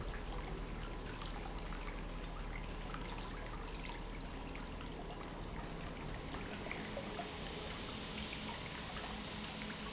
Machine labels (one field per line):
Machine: pump